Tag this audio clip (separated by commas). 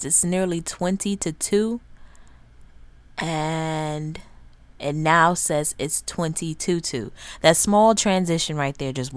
Speech